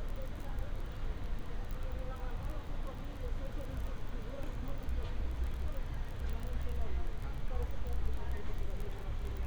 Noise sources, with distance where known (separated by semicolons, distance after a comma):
person or small group talking, far